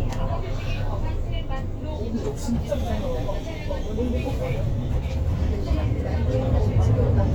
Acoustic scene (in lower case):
bus